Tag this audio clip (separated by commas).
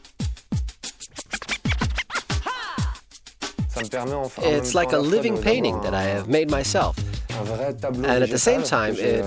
Speech, Music